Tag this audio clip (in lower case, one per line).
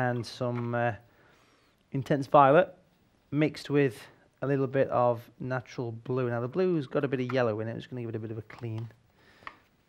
speech